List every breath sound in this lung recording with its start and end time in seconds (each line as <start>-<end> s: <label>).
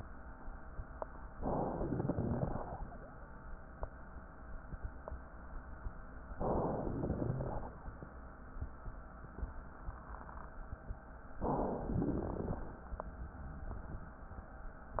1.35-2.14 s: inhalation
1.35-2.14 s: crackles
2.16-2.89 s: exhalation
6.32-7.11 s: inhalation
7.12-7.84 s: exhalation
7.20-7.65 s: rhonchi
11.43-11.98 s: inhalation
11.99-12.76 s: exhalation
11.99-12.76 s: crackles